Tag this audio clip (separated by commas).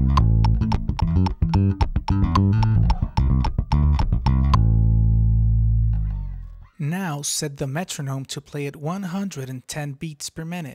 Guitar, Plucked string instrument, Speech, Bass guitar, Musical instrument, Music